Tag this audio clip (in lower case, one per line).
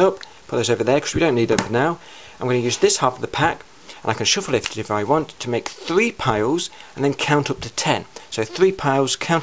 speech